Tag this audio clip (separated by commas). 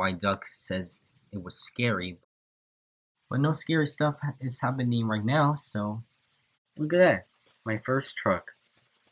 Speech